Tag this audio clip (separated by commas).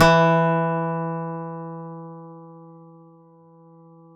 Musical instrument, Music, Guitar, Plucked string instrument, Acoustic guitar